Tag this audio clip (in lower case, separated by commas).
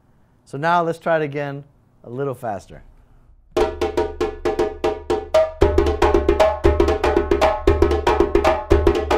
playing djembe